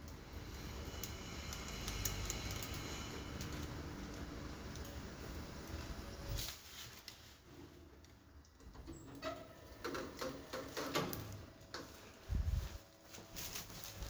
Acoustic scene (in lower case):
elevator